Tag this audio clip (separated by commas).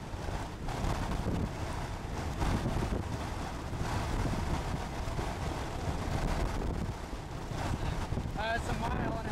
Speech, outside, rural or natural